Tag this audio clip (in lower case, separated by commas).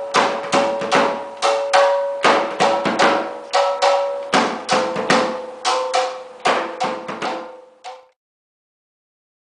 drum, percussion